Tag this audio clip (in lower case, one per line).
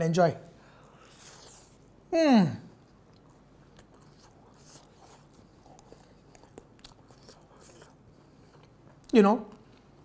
chewing
inside a small room
speech